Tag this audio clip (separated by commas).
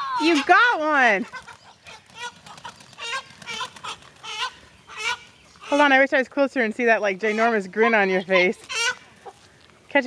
Cluck, Chicken, Fowl